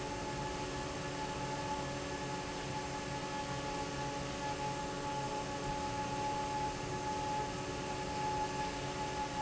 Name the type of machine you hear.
fan